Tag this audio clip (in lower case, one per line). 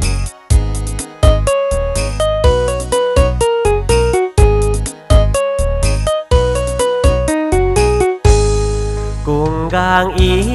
music